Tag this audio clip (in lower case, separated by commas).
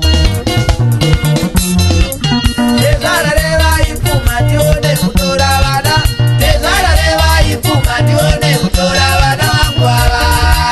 blues, folk music, music